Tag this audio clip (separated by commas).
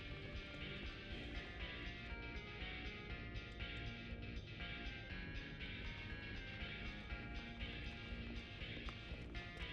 Music